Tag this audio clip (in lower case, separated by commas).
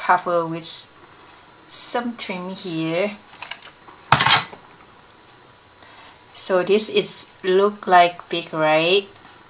inside a small room, speech